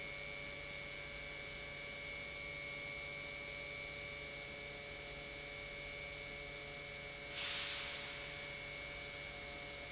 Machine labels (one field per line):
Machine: pump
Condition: normal